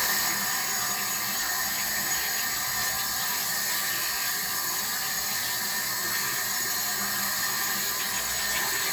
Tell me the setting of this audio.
restroom